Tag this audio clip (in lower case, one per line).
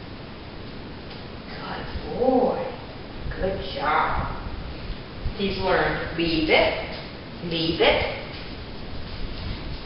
speech